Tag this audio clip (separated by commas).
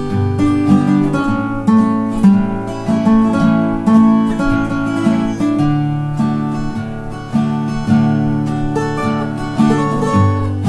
Tender music, Music